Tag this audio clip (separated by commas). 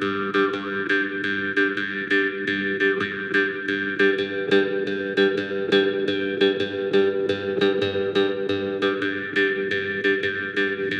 Music, Harp